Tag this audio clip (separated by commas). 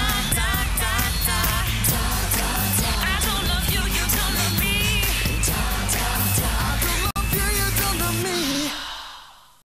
Music